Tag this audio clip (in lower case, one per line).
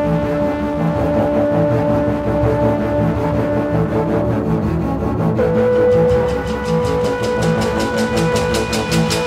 theme music
music